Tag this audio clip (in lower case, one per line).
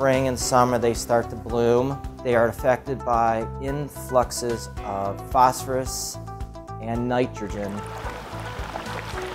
speech
music